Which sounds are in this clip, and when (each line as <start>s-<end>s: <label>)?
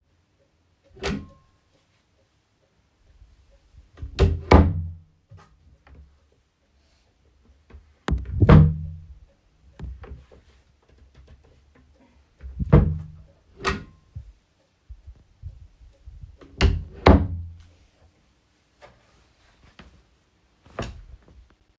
1.0s-1.3s: wardrobe or drawer
4.0s-5.0s: wardrobe or drawer
7.9s-9.5s: wardrobe or drawer
12.5s-14.1s: wardrobe or drawer
16.4s-17.7s: wardrobe or drawer